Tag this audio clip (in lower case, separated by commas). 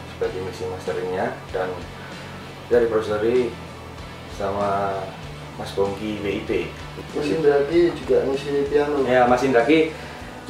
music, speech